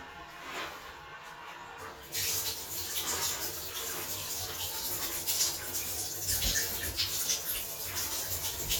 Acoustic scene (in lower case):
restroom